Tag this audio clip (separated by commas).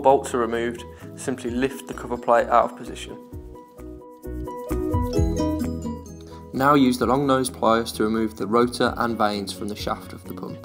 Speech, Music